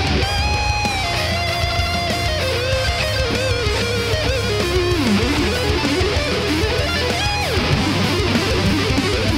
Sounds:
guitar
plucked string instrument
music
electric guitar
musical instrument
strum

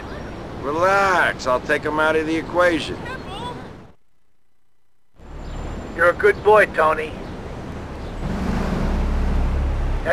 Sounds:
speech

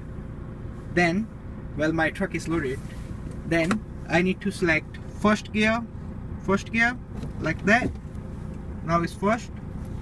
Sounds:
speech
vehicle

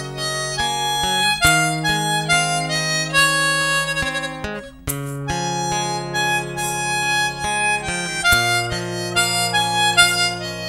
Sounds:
playing harmonica

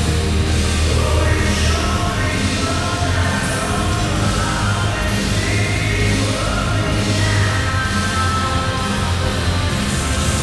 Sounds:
music

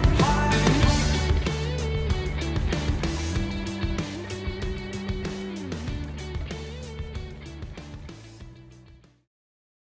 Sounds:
music
background music

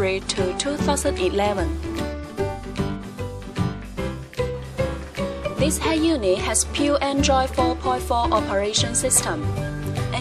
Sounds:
speech
music

